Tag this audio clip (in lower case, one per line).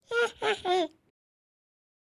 human voice
laughter